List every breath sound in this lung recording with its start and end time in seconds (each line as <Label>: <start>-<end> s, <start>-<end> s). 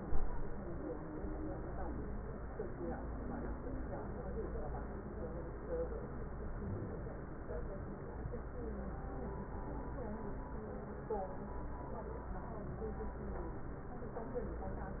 Wheeze: 6.57-7.00 s